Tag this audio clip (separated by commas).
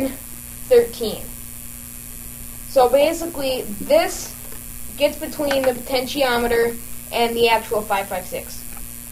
Mains hum, Hum